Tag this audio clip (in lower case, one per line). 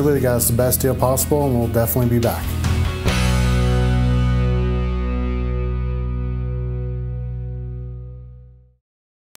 speech
music